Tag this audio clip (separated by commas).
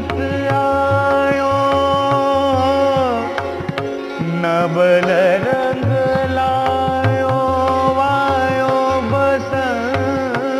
Carnatic music, Music